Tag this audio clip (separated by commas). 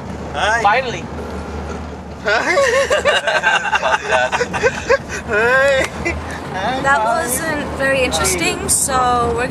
Speech